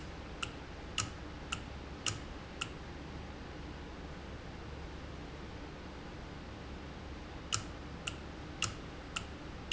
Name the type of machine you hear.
valve